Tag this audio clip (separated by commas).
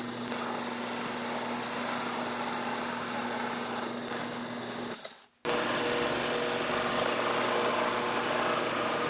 Power tool, Drill, Tools